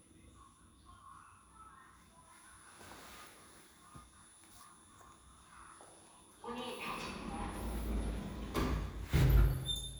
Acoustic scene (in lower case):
elevator